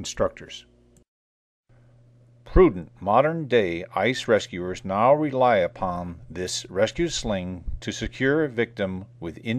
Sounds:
speech

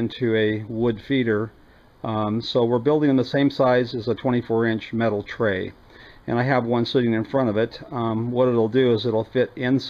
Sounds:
inside a small room
speech

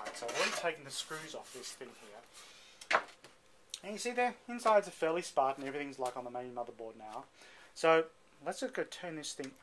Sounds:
speech

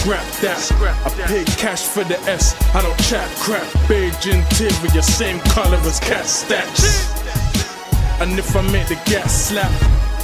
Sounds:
music

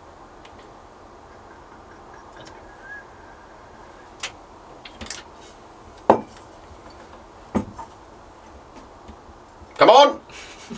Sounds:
speech

